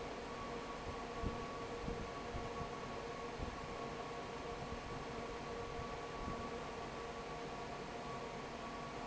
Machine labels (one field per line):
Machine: fan